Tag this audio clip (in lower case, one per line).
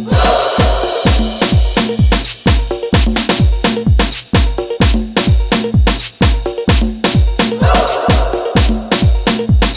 dubstep
music